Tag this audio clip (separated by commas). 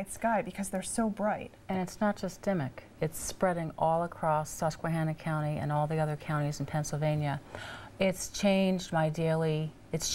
inside a small room, Speech